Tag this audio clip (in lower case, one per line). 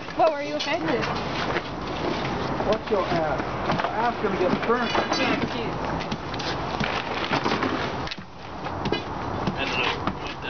wind
fire
wind noise (microphone)